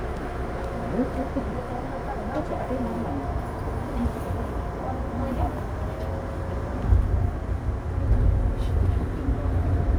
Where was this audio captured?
on a subway train